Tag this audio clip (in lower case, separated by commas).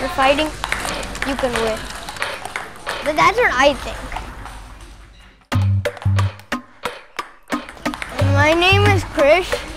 speech, ping, music